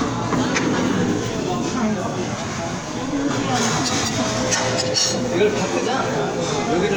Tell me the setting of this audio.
restaurant